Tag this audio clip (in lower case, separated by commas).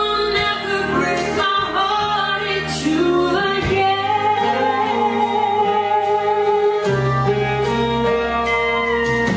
music, singing